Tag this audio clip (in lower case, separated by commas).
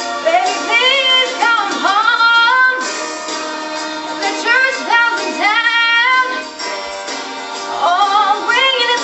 music, female singing